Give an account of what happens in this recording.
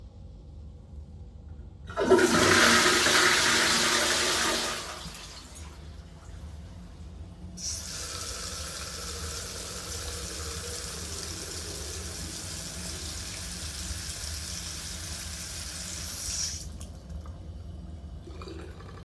I flushed the toilet and then ran the sink water.